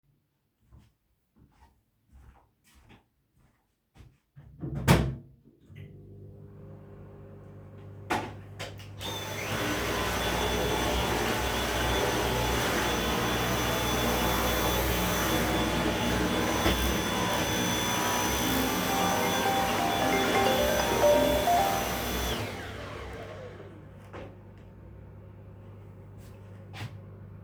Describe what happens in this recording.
I walked to the microwave, closed the microwave, turned it on, then I started cleaning with the vacuum-cleaner. Suddenly the phone rang and I stopped cleaning. Then I walked a few steps.